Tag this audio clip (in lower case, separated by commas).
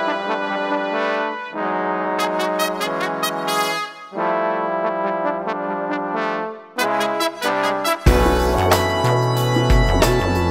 musical instrument, trombone, music